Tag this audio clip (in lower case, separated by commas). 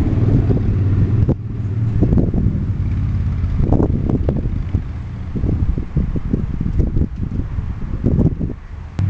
flap, outside, urban or man-made